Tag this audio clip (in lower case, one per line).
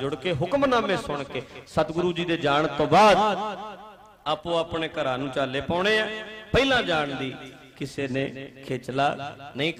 speech